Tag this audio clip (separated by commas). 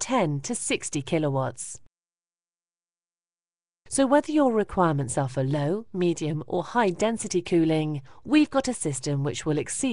Speech